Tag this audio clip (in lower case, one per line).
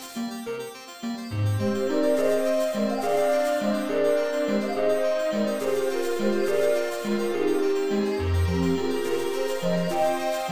music